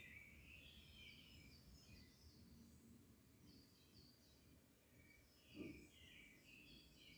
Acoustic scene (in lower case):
park